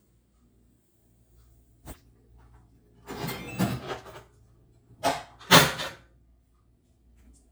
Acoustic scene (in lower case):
kitchen